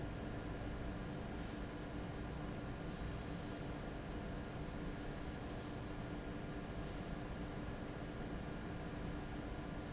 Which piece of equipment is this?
fan